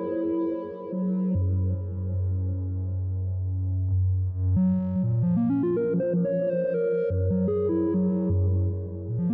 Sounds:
playing synthesizer

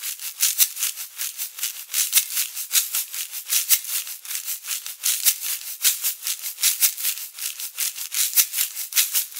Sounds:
playing guiro

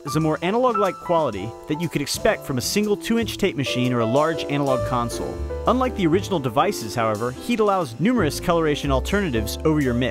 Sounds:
music, speech

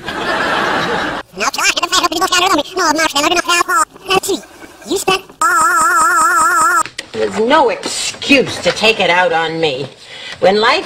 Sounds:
speech

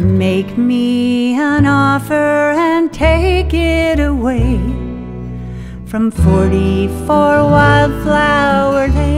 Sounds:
music, vehicle

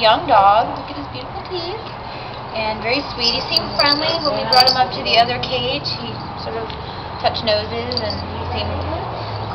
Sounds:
speech

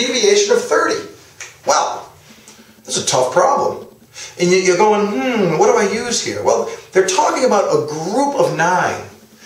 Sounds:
speech

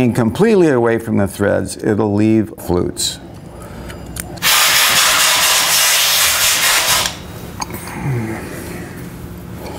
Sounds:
tools, speech

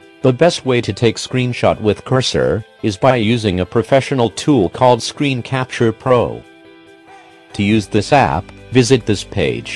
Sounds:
music, speech

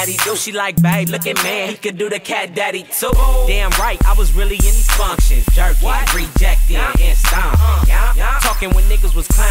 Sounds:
music

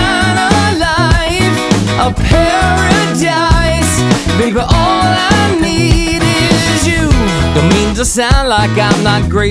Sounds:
music

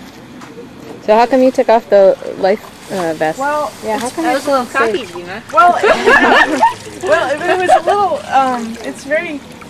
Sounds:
dribble

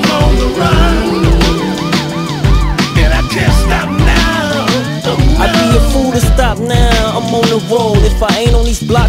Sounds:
music

